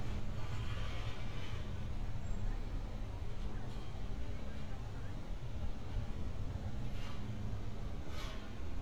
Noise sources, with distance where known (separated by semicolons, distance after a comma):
medium-sounding engine